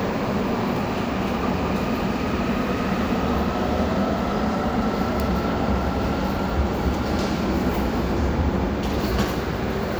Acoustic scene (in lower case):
subway station